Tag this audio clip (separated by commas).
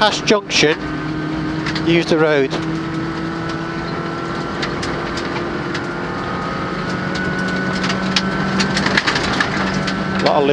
Speech